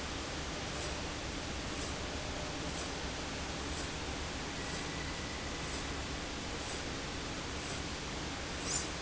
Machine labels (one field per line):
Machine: slide rail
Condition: normal